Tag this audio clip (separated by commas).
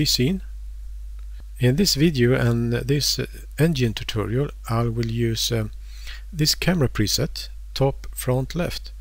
Speech